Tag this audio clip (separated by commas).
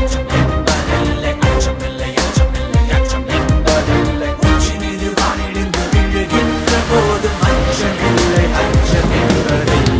Music